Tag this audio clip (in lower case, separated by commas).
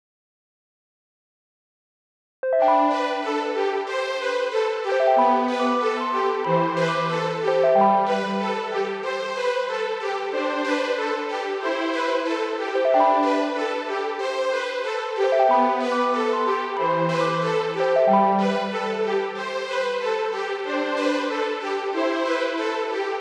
music, musical instrument, keyboard (musical)